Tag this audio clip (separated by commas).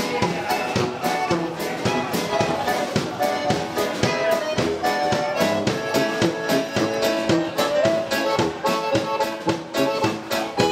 Dance music, Speech, Music